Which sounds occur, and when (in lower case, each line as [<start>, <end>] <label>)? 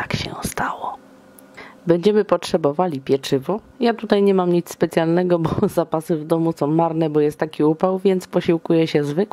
[0.00, 0.49] wind noise (microphone)
[0.00, 0.94] female speech
[0.00, 9.32] mechanisms
[1.50, 1.78] breathing
[1.85, 3.61] female speech
[3.75, 9.32] female speech
[5.40, 6.04] wind noise (microphone)